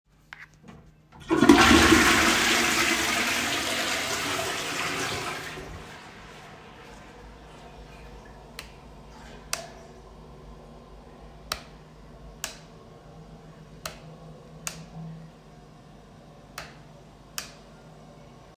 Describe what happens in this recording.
I flush down the toilet while I turn on and off the light key a couple of times.